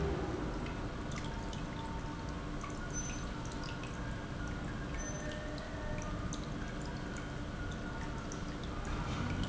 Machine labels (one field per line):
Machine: pump